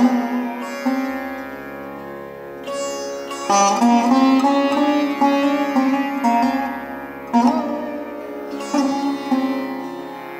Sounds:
pizzicato

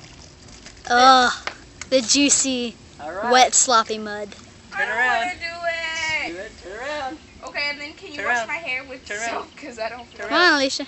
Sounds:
speech

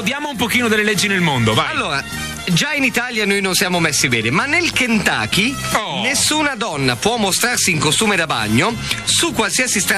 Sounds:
music, speech

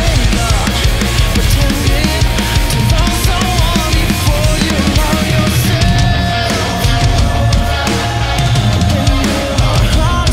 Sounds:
rimshot, percussion, drum roll, drum, drum kit, bass drum

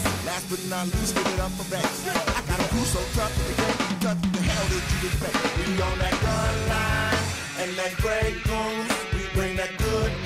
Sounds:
rhythm and blues, music

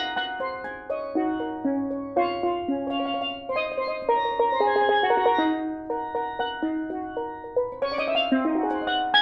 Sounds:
playing steelpan

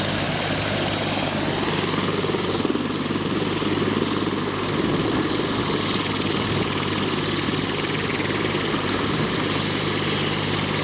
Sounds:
helicopter, vehicle

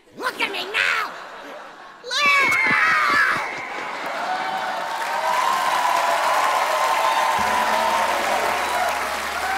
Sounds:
applause

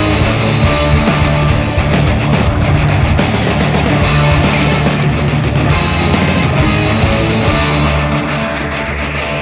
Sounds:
heavy metal, music

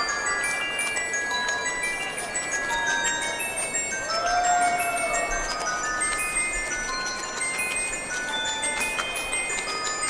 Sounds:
glockenspiel, mallet percussion, xylophone

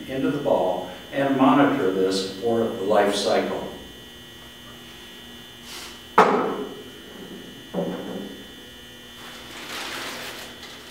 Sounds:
speech, tap

